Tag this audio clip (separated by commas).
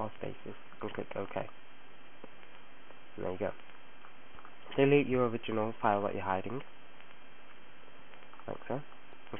Speech